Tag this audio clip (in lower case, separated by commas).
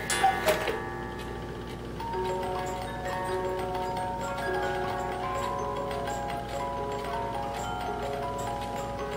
clock, music